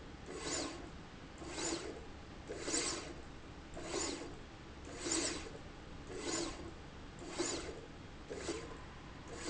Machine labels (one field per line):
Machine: slide rail